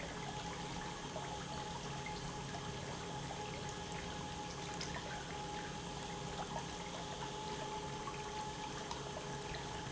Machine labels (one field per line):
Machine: pump